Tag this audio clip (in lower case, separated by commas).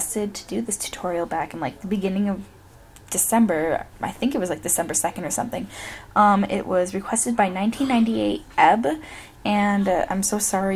speech